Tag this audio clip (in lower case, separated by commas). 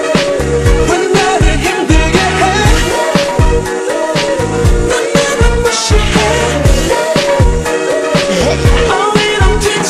music, singing